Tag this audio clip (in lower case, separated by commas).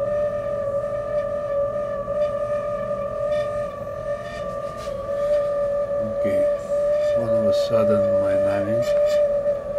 speech